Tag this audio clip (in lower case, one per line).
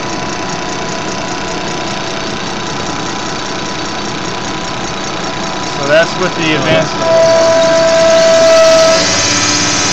pump (liquid)